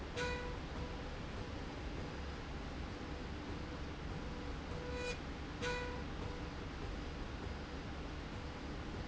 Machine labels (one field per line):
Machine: slide rail